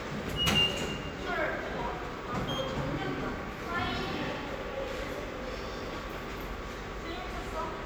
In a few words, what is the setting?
subway station